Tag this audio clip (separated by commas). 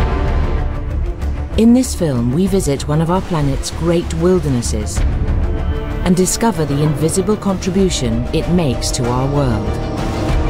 Music, Speech